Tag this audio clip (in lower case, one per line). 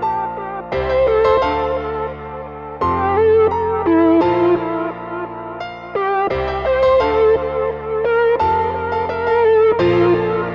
music